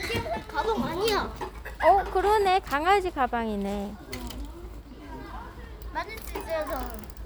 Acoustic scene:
park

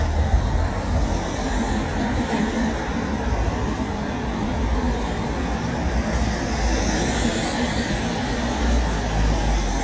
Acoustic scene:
street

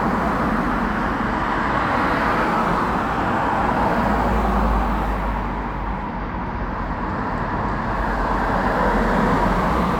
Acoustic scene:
street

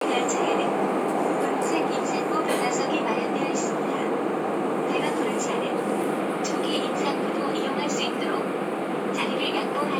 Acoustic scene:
subway train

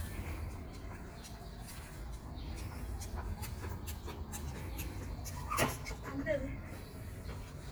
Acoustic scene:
park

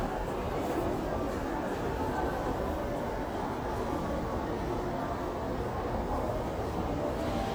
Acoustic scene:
crowded indoor space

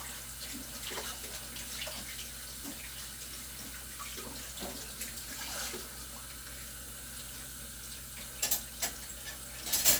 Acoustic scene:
kitchen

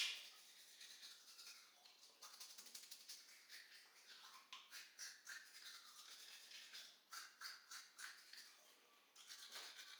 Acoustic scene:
restroom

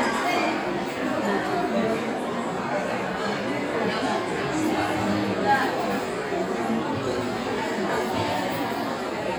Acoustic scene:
restaurant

